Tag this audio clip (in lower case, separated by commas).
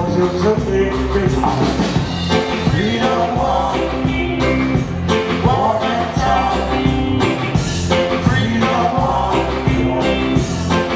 music